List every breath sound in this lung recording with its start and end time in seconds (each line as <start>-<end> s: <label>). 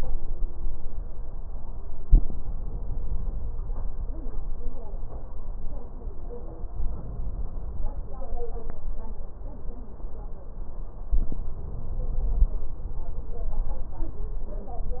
6.73-8.23 s: inhalation
11.11-12.53 s: inhalation